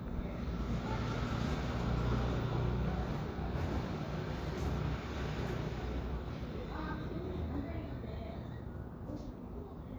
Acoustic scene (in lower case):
residential area